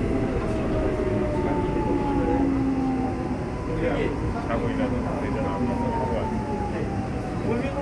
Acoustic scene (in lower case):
subway train